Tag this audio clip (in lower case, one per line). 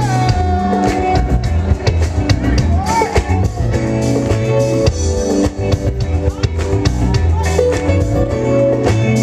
speech
music